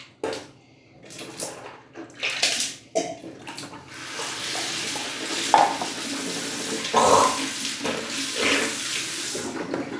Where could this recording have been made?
in a restroom